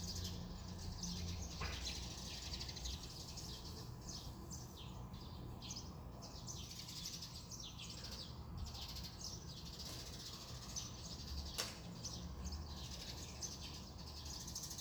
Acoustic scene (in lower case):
residential area